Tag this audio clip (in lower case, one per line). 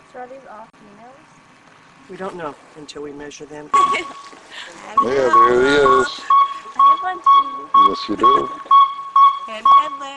speech